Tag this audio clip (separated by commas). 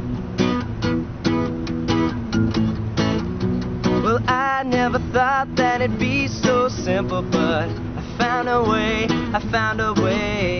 Guitar, Music, Musical instrument, Plucked string instrument